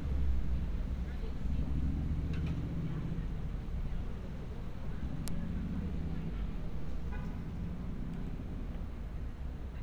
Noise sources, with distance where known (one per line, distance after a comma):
car horn, far
person or small group talking, far